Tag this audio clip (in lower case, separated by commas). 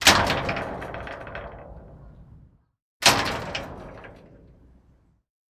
home sounds, slam, door